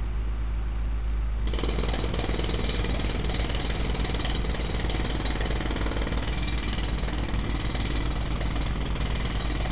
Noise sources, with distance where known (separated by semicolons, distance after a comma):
unidentified impact machinery, near